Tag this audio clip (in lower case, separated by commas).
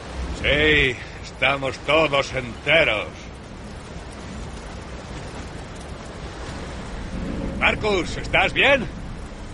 speech